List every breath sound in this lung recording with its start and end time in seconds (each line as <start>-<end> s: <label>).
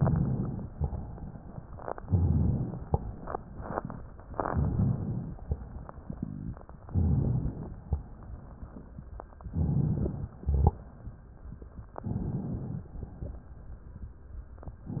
0.67-1.70 s: crackles
0.69-1.71 s: exhalation
2.05-2.74 s: inhalation
2.76-3.48 s: exhalation
4.48-5.36 s: inhalation
5.38-6.33 s: exhalation
6.83-7.71 s: inhalation
7.69-8.97 s: exhalation
7.72-8.97 s: crackles
9.50-10.37 s: inhalation
10.39-11.24 s: exhalation
11.99-12.86 s: inhalation
12.85-13.86 s: exhalation